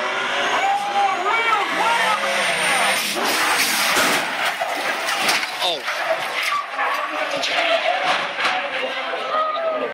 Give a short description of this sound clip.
A car is passing a race, and an announcer yells